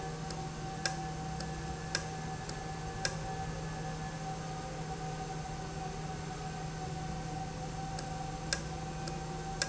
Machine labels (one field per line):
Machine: valve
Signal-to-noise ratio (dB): -6 dB